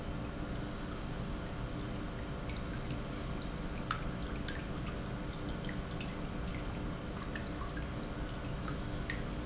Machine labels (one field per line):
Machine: pump